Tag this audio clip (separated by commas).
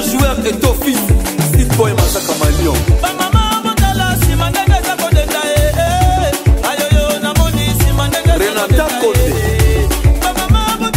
Music of Africa, Music, Afrobeat